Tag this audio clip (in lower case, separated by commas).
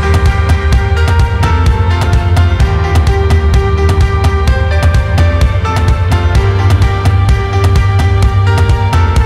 music